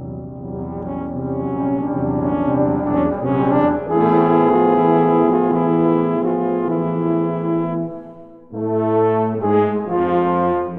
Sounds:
Brass instrument, Trombone, Music, Musical instrument

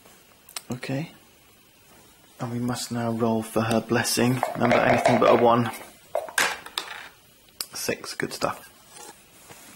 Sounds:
inside a small room, Speech

